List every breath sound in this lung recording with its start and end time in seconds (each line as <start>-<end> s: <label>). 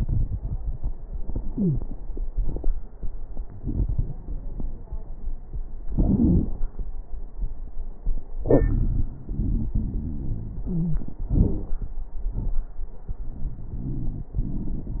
1.46-1.84 s: wheeze
9.26-11.07 s: wheeze
13.24-14.31 s: wheeze